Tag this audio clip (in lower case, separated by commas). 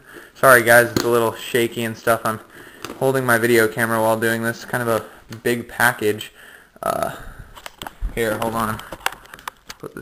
speech